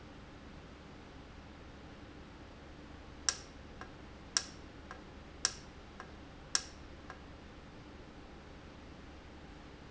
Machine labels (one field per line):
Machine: valve